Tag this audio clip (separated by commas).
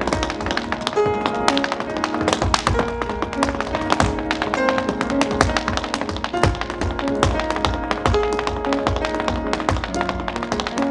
tap dancing